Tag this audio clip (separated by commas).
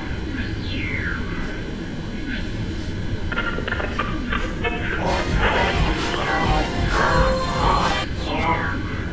Music